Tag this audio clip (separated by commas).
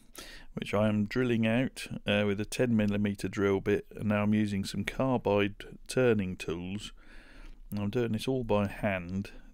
firing cannon